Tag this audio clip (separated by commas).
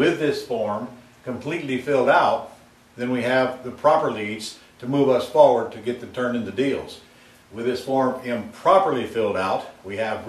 Speech